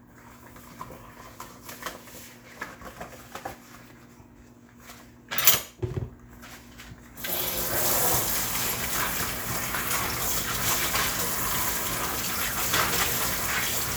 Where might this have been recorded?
in a kitchen